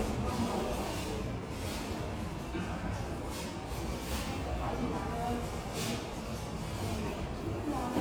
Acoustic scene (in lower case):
subway station